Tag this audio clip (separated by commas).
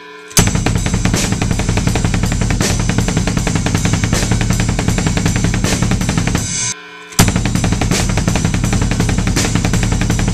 playing double bass